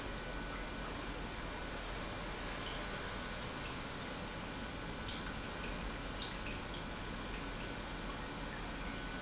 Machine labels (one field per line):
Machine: pump